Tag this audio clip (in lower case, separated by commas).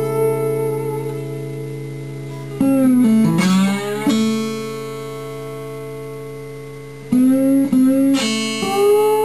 plucked string instrument, guitar, music, acoustic guitar, musical instrument